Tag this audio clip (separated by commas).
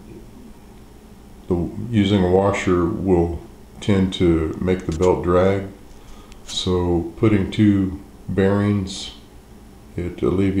Speech